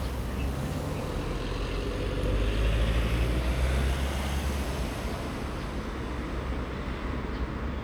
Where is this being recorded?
on a street